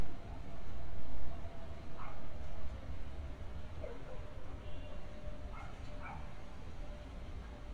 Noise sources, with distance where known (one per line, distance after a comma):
car horn, far
dog barking or whining